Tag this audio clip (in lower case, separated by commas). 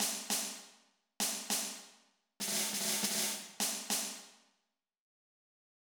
drum, percussion, snare drum, musical instrument, music